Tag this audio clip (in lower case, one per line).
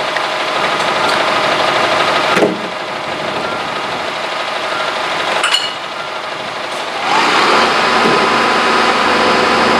truck
vehicle